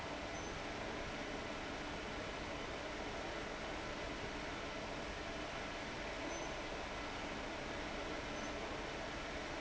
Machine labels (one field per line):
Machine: fan